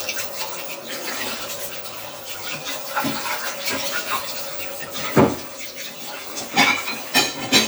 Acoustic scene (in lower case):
kitchen